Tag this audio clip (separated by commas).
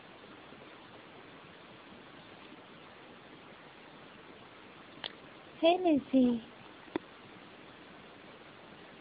Speech